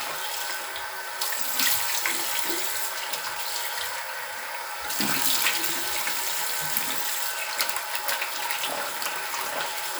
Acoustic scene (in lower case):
restroom